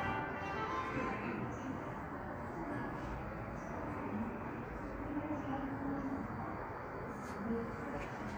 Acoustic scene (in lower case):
subway station